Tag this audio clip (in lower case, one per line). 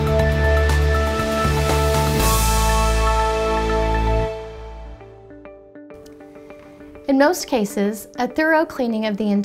music
speech